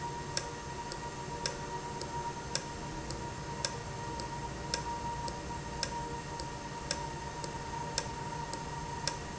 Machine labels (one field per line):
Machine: valve